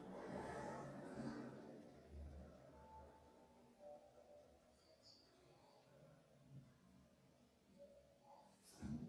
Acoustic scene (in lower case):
elevator